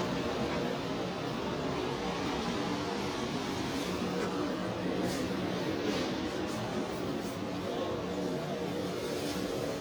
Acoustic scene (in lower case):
residential area